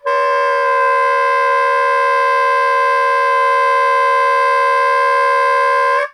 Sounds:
Wind instrument, Music, Musical instrument

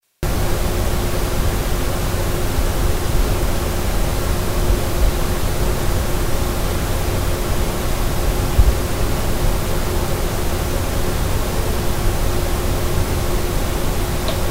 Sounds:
Mechanisms

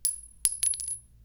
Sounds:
Glass, clink

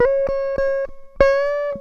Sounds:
Musical instrument, Guitar, Music, Plucked string instrument

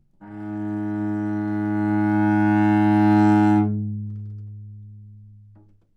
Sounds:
Bowed string instrument, Music, Musical instrument

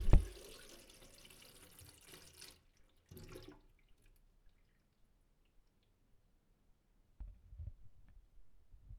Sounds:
Sink (filling or washing), Water tap, Domestic sounds

